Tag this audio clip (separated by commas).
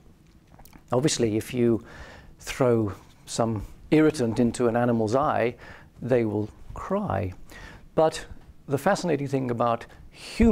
Speech